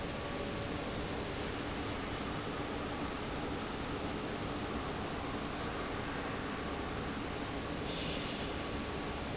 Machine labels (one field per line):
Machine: fan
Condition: abnormal